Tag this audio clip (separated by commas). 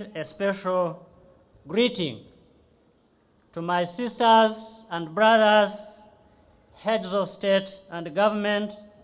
Narration, Speech, Male speech